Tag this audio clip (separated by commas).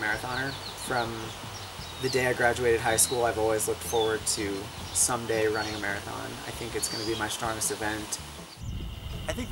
outside, rural or natural, Speech